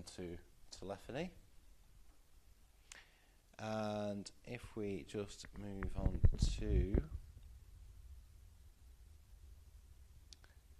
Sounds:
Speech

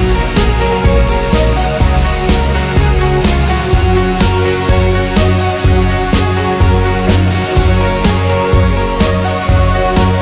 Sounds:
Music

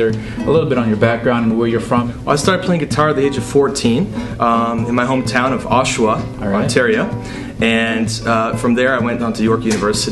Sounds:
Speech, Music

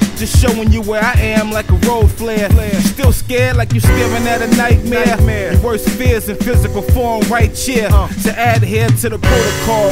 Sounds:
Music

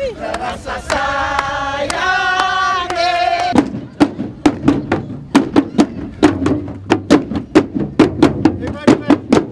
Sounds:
Music, Speech

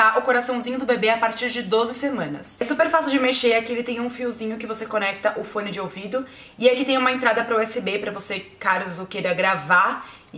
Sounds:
Speech

